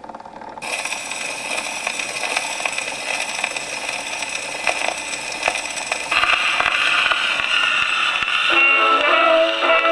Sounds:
Music, inside a small room

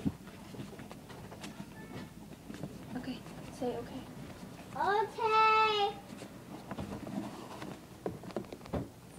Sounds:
inside a small room, Speech

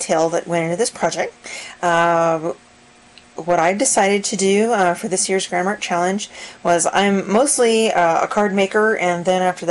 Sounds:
Speech

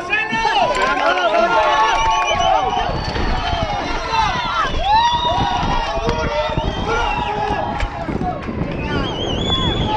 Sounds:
Speech

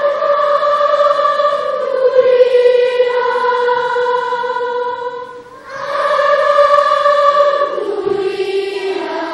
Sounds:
singing choir

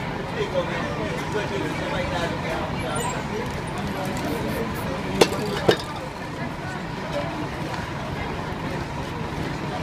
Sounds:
Speech, Spray

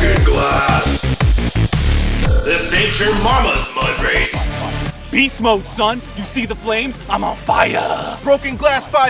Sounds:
Speech, Music

